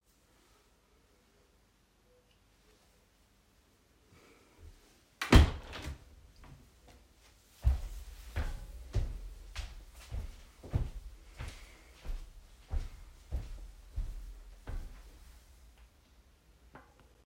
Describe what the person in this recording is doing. I closed the bedroom window, then some footsteps can be heard.